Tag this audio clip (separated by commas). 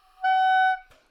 Music, Musical instrument, woodwind instrument